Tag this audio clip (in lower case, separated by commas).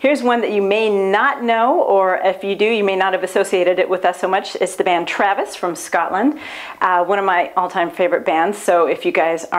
speech